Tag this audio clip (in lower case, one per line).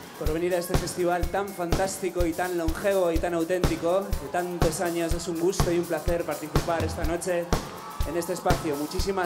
musical instrument
speech
music